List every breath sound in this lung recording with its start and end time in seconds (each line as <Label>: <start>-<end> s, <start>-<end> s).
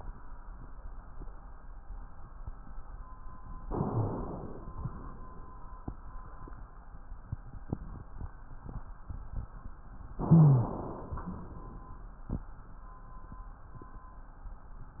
Inhalation: 3.66-4.71 s, 10.17-11.21 s
Exhalation: 4.69-5.79 s, 11.20-12.30 s
Rhonchi: 3.70-4.29 s, 10.17-10.76 s